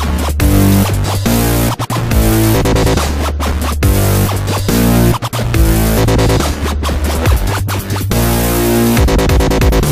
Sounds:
music
sampler

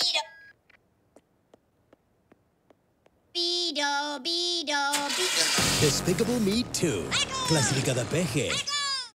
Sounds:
music
speech

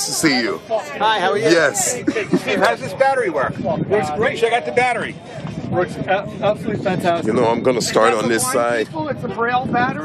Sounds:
speech

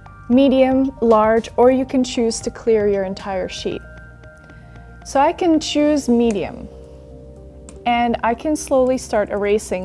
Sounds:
speech
music

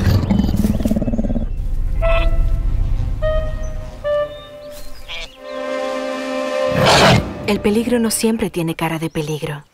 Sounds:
speech

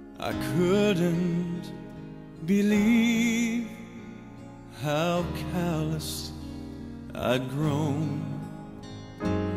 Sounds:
music

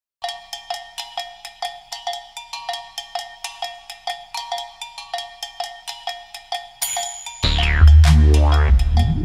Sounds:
music
wood block

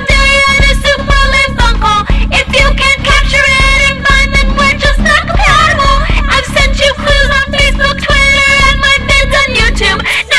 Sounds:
music

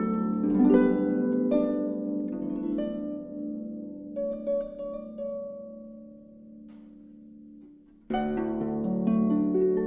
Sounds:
playing harp

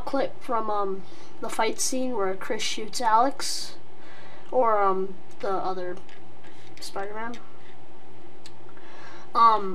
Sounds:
speech

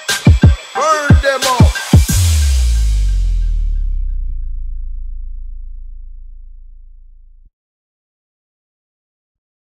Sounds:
silence
music

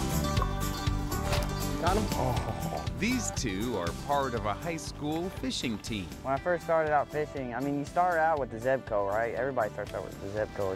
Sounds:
speech
music

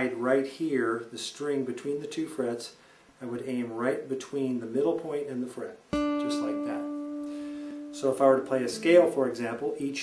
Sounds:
speech
music

